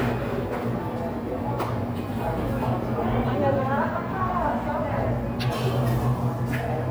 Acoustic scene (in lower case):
cafe